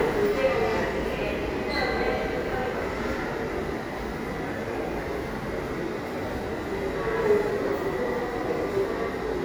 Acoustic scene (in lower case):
subway station